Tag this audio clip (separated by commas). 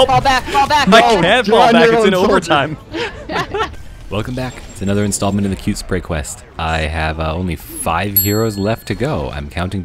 Music, Speech